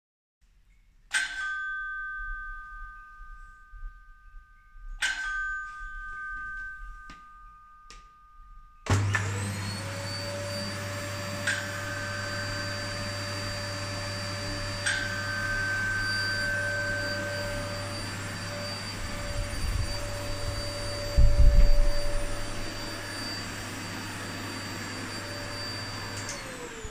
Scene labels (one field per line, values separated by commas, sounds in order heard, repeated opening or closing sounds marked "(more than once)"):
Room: hallway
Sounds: bell ringing, vacuum cleaner